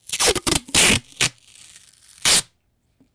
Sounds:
home sounds, duct tape

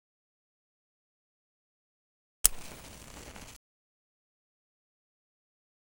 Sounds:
Fire

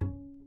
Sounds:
Musical instrument, Music, Bowed string instrument

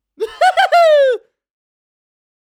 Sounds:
Human voice, Laughter

